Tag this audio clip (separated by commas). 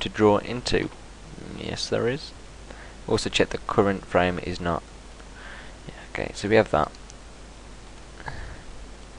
Speech